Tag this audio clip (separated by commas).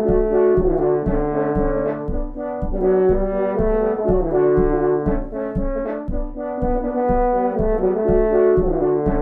Saxophone, Music